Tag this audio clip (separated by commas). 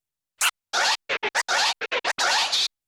Music, Musical instrument, Scratching (performance technique)